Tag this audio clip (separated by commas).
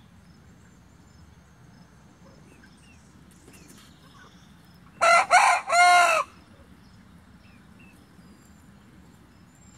chicken crowing